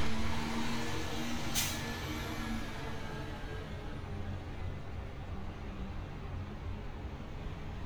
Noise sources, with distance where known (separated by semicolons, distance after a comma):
engine of unclear size, near